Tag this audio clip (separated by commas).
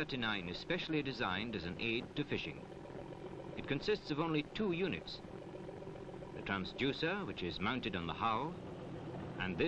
Speech